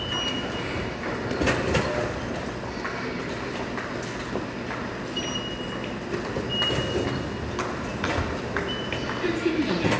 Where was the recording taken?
in a subway station